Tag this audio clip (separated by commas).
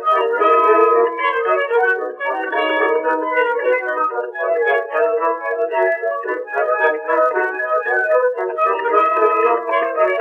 Music